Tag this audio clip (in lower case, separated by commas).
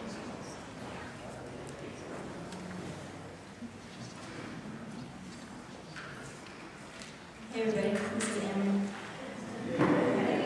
speech